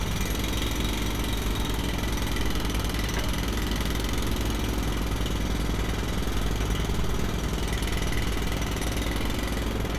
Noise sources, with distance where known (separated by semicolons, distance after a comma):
jackhammer, near